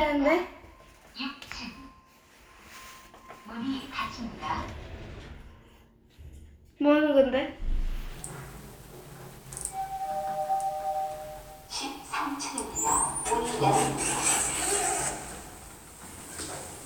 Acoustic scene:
elevator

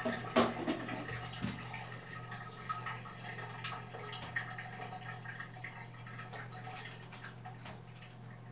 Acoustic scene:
restroom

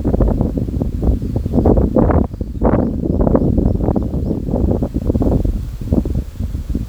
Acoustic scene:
park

